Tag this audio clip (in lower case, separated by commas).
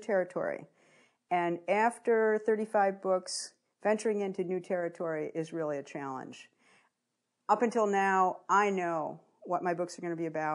speech